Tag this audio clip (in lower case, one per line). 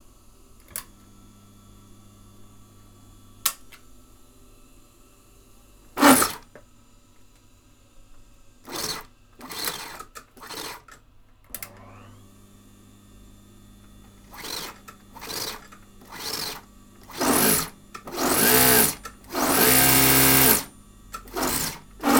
engine
mechanisms